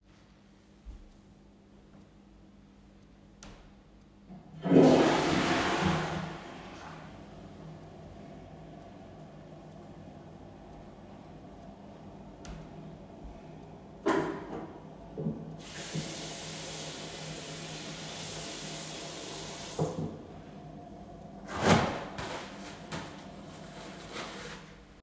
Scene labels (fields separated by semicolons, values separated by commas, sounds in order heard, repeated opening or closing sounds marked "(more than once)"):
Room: lavatory; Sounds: toilet flushing, running water